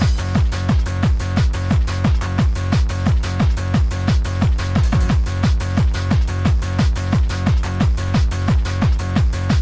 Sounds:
Music

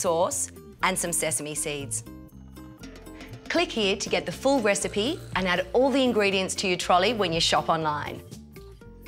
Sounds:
Music, Speech

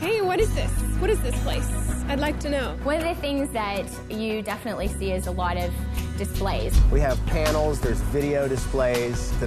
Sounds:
Speech, Music

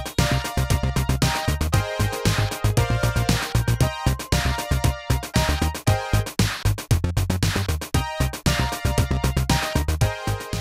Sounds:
playing synthesizer

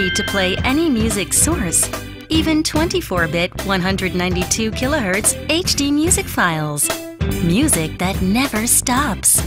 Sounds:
Music, Speech

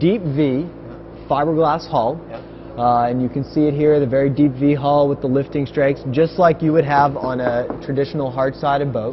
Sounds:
Speech

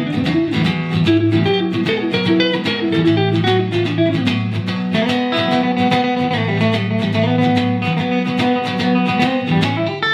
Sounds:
Music, Musical instrument, Strum, Guitar, Plucked string instrument

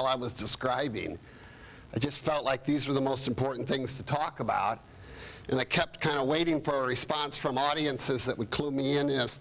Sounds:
monologue, Speech, Male speech

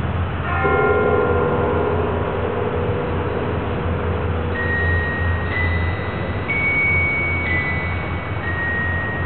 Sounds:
Mallet percussion, Glockenspiel, Marimba

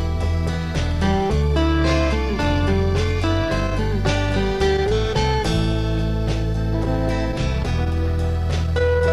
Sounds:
Music

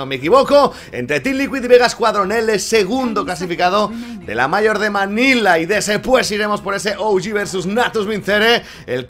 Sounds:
Speech

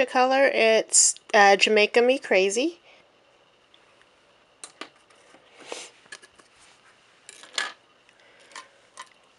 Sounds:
Speech

